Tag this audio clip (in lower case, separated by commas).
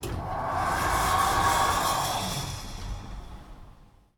home sounds, door, sliding door